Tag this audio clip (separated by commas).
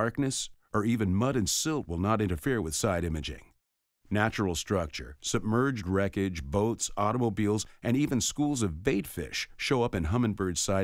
Speech